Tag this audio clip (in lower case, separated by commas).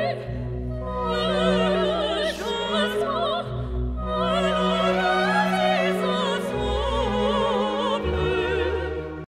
music